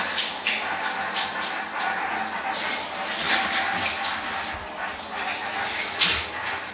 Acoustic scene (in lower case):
restroom